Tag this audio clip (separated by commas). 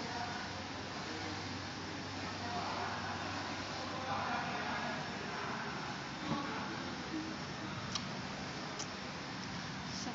Speech